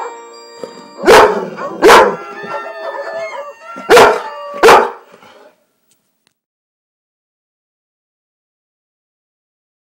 Bell rings and dog barks